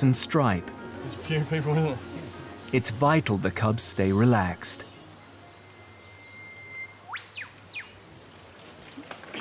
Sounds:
music, speech

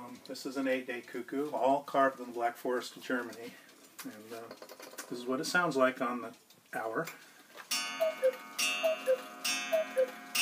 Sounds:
speech, tick-tock

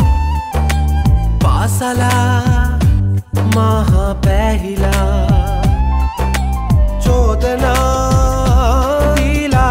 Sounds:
music

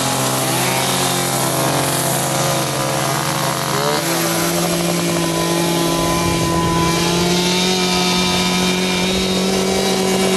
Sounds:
chainsaw, chainsawing trees

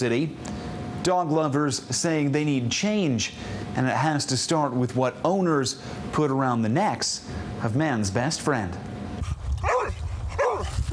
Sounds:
speech, bow-wow, dog, animal, yip, domestic animals

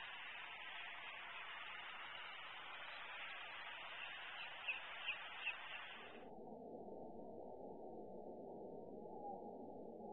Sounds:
bird, outside, rural or natural

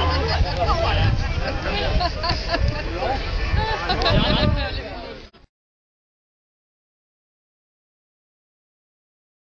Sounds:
speech

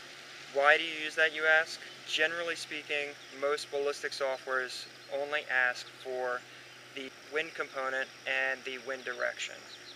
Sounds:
speech

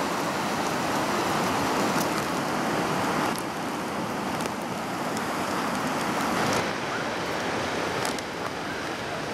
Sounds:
ocean burbling, waves, ocean

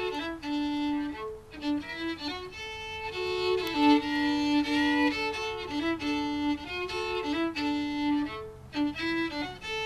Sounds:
violin, music, musical instrument

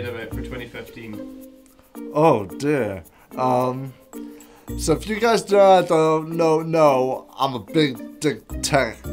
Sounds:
speech

